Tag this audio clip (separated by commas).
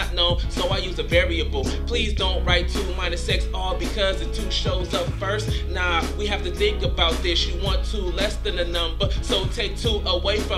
Music